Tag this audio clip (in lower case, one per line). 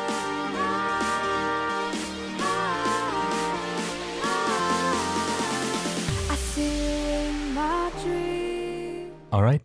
speech
music